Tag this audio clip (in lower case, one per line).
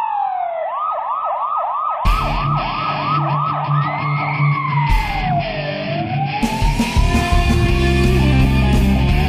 rock and roll
music